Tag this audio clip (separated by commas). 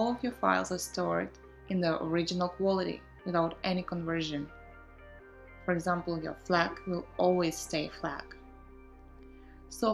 Music, Speech